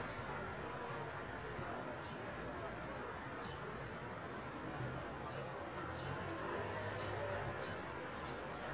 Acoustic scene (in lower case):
residential area